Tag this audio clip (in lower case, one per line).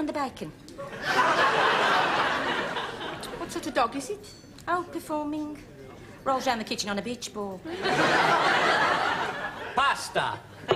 speech